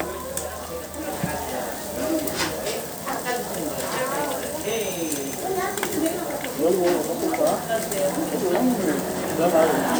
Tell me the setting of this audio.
restaurant